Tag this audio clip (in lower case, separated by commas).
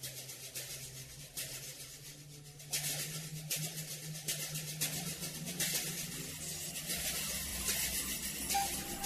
music